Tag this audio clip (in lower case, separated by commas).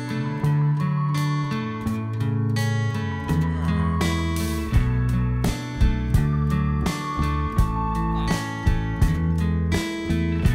music